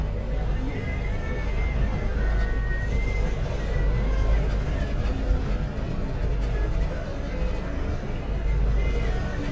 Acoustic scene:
bus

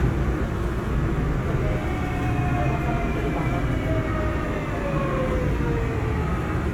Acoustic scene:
subway train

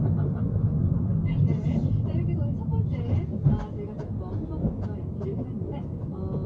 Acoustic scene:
car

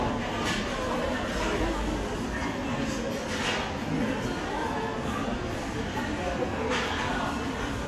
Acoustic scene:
crowded indoor space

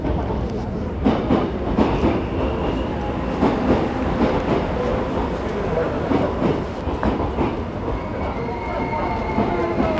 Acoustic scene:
subway station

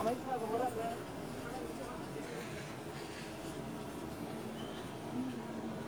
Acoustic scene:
park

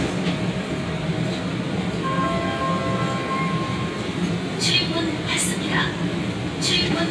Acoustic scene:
subway train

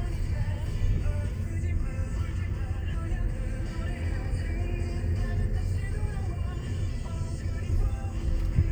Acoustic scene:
car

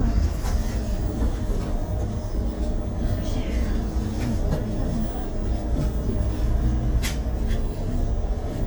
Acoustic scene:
bus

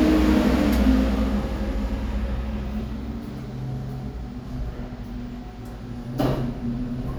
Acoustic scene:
elevator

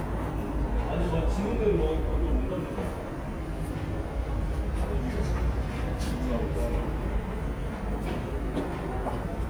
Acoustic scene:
subway station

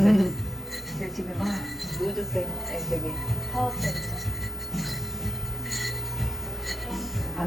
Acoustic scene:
cafe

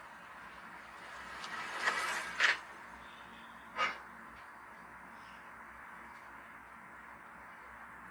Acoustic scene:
street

